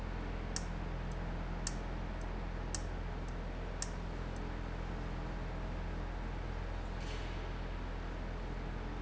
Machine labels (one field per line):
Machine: valve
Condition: abnormal